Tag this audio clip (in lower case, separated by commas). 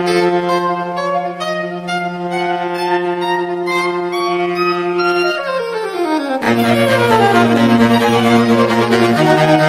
playing saxophone